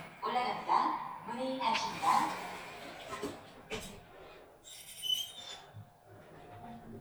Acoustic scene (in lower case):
elevator